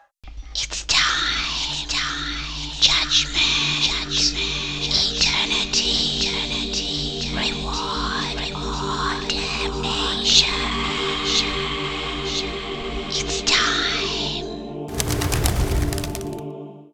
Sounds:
whispering, human voice

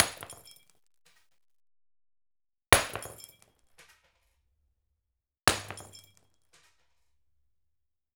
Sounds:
shatter, glass

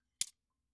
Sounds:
home sounds, silverware

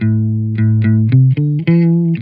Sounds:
music, plucked string instrument, guitar, musical instrument, electric guitar

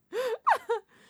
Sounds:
laughter, human voice

